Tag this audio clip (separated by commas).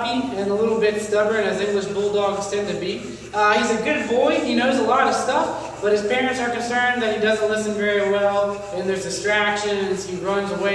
Speech